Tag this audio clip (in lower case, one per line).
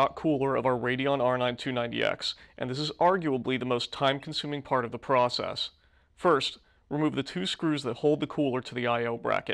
speech